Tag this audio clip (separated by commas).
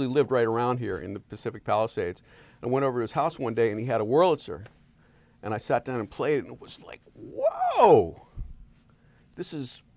Speech